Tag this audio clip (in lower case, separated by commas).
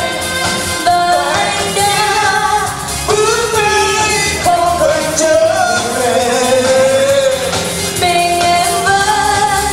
music